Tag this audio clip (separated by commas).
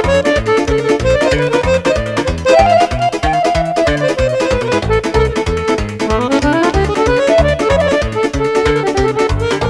Keyboard (musical), Music, Accordion, Musical instrument